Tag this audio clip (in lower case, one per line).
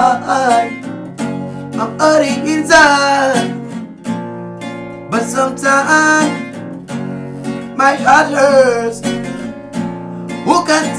music